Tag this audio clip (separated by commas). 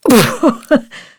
Giggle, Laughter, Human voice